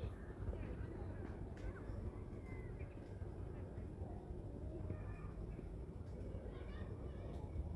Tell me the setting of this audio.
residential area